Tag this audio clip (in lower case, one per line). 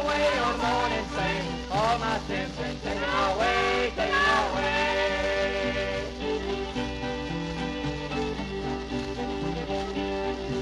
country
music